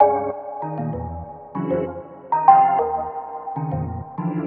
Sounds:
organ
musical instrument
music
keyboard (musical)

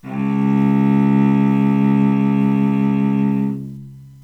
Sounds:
bowed string instrument
musical instrument
music

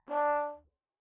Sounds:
music
musical instrument
brass instrument

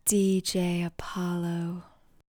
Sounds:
speech
female speech
human voice

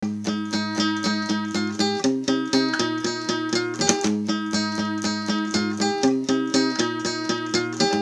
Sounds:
guitar
musical instrument
acoustic guitar
music
plucked string instrument

